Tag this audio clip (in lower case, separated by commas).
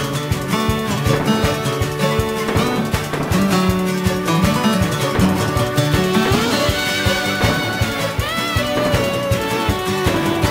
music